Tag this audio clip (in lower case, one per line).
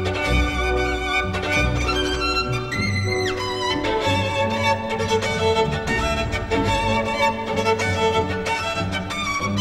musical instrument
fiddle
music